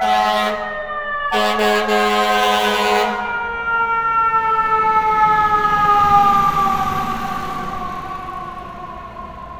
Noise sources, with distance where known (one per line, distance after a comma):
large-sounding engine, near
car horn, near
siren, near